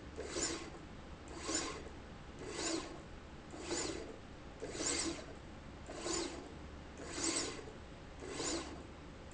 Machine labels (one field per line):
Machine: slide rail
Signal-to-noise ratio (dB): 6 dB